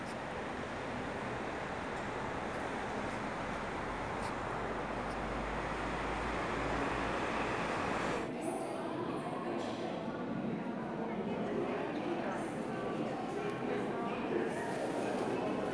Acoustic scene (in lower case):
subway station